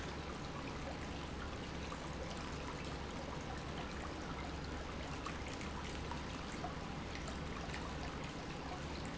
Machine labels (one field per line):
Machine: pump